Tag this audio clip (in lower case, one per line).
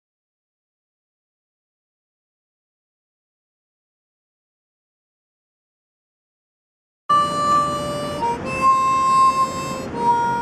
playing harmonica